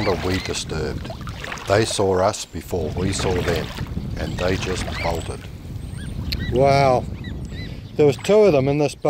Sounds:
goose, speech, outside, rural or natural

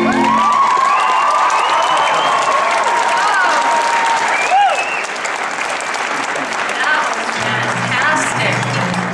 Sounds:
people clapping, music, applause

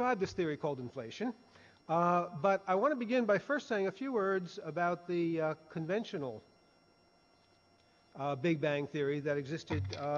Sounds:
speech

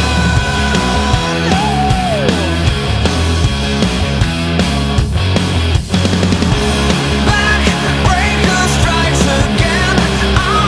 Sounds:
progressive rock, music

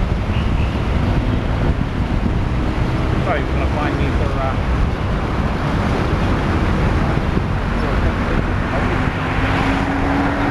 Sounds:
vehicle, speech, car

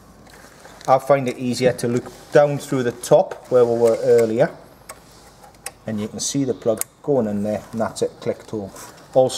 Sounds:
speech

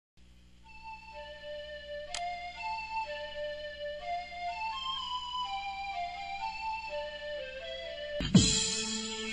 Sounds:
music

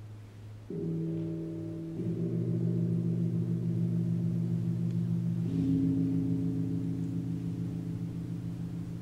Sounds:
gong

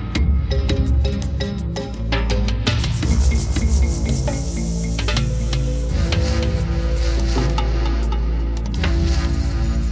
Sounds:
music

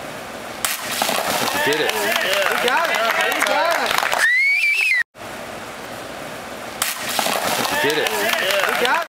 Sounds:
speech

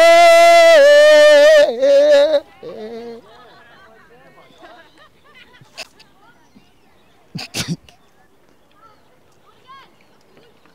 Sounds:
people screaming

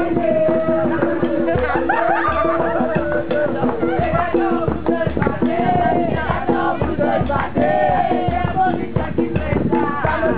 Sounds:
dance music, music

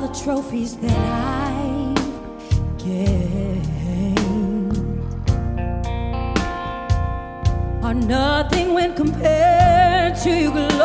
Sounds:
music

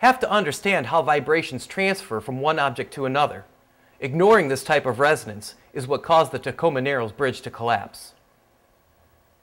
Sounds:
speech

